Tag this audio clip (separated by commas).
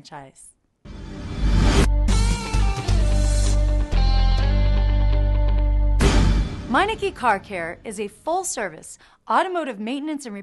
Speech, Music